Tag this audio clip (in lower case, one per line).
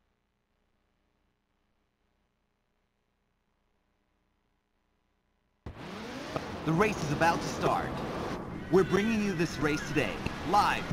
speech